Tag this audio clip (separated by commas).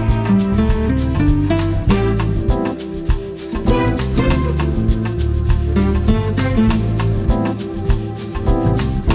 Music